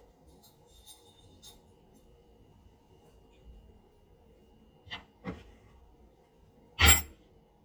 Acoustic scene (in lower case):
kitchen